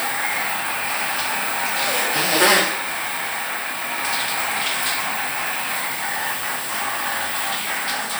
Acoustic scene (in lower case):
restroom